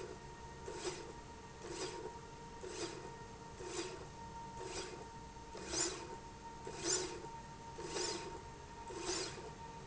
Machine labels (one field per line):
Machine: slide rail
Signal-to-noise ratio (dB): 6 dB